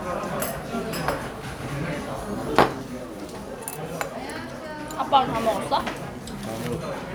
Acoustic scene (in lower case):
restaurant